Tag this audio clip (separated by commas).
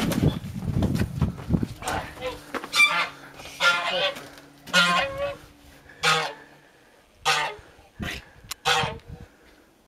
Honk